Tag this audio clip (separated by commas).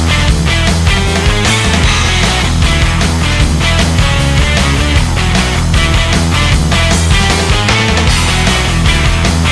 Music